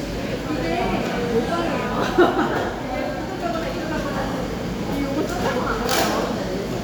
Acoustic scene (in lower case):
cafe